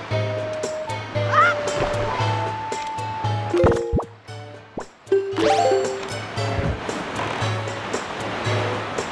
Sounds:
Music

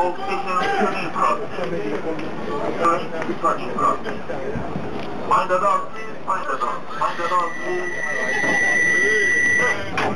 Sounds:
Speech

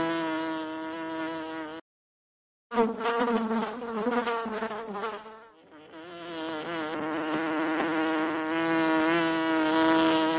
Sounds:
etc. buzzing

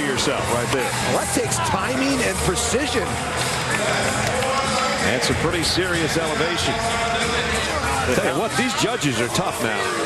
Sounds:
Speech, Music

